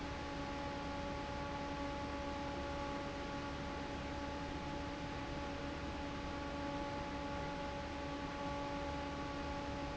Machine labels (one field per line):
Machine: fan